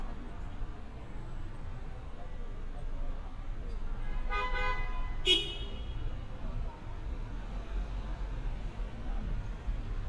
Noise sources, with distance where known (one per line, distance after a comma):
car horn, near